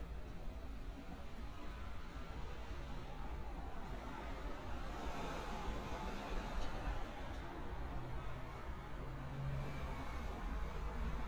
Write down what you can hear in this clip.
background noise